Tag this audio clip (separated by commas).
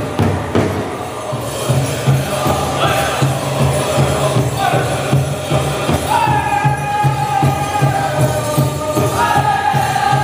Music, Speech